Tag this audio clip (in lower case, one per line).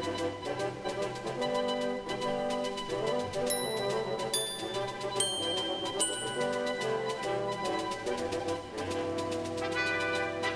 music